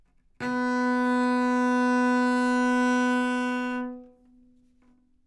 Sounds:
Musical instrument, Bowed string instrument, Music

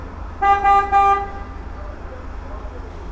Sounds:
Traffic noise, Car, Motor vehicle (road), Vehicle, Vehicle horn, Alarm

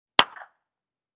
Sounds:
Hands, Clapping

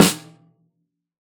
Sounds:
Musical instrument, Music, Drum, Percussion, Snare drum

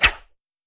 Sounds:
Whoosh

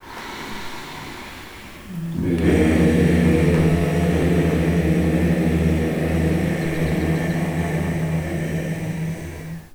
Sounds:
Human voice, Singing, Music, Musical instrument

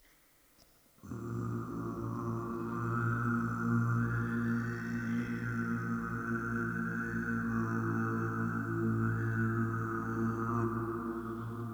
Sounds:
Singing, Human voice

